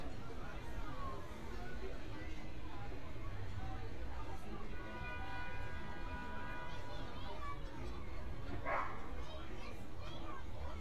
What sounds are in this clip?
car horn, unidentified human voice, dog barking or whining